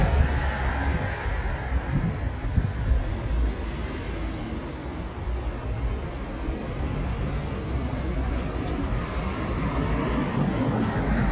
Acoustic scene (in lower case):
street